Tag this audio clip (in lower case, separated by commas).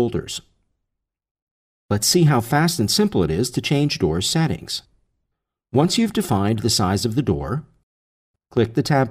speech